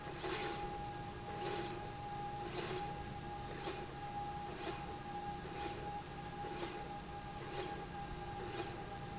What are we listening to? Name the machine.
slide rail